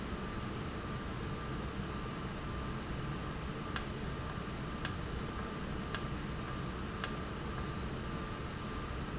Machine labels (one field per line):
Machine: valve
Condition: normal